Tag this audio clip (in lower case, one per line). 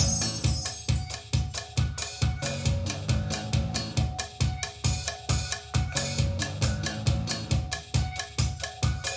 music
rock and roll
progressive rock
punk rock